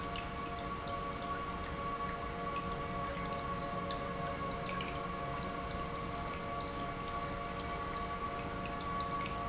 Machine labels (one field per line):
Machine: pump